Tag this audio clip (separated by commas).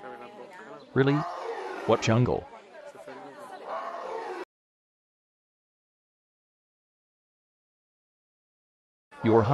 Speech, Roar